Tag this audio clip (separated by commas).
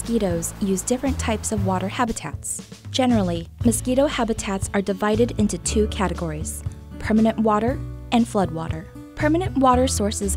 mosquito buzzing